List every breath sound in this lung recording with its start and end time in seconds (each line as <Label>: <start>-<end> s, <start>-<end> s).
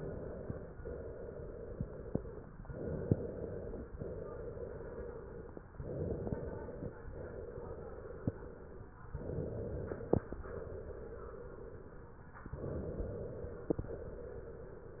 Inhalation: 0.00-0.74 s, 2.63-3.92 s, 5.75-7.04 s, 9.15-10.42 s, 12.53-13.79 s
Exhalation: 0.78-2.49 s, 3.92-5.63 s, 7.04-8.95 s, 10.42-12.32 s, 13.79-15.00 s